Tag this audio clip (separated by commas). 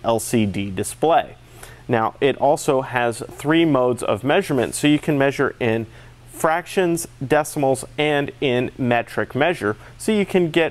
Speech